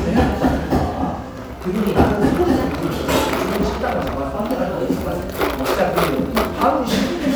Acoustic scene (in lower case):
cafe